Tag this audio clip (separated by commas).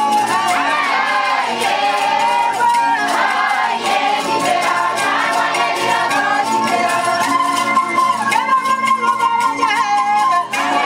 Music